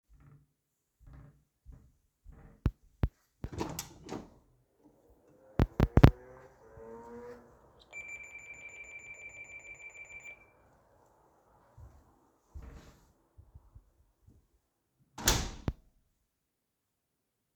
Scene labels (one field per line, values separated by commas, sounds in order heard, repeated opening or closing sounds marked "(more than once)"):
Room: hallway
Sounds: footsteps, door (more than once), bell ringing